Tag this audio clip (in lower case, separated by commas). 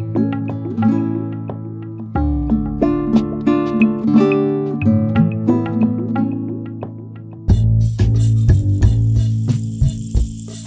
plucked string instrument, guitar, musical instrument, music